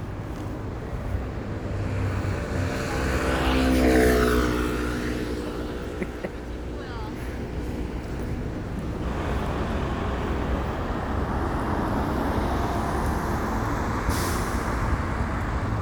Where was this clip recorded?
on a street